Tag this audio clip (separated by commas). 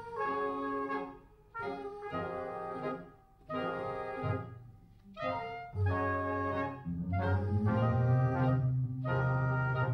Jazz, Music, inside a large room or hall